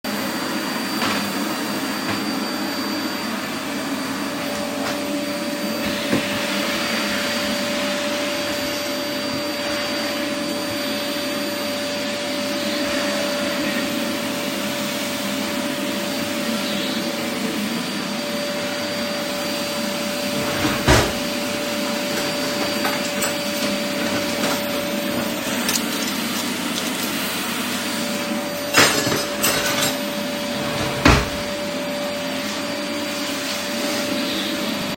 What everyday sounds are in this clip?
vacuum cleaner, wardrobe or drawer, cutlery and dishes